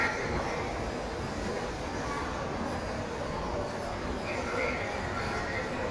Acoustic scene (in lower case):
subway station